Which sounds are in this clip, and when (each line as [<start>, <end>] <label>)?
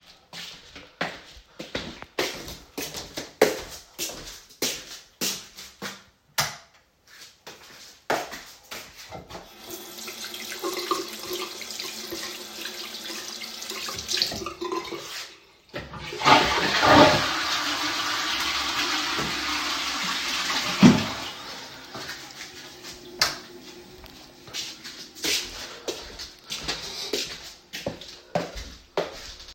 [0.28, 9.58] footsteps
[6.30, 6.70] light switch
[9.61, 15.44] running water
[15.70, 25.17] toilet flushing
[23.07, 23.57] light switch
[24.57, 29.55] footsteps